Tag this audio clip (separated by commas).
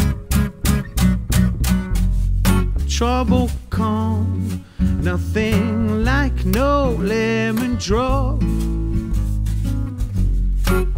Music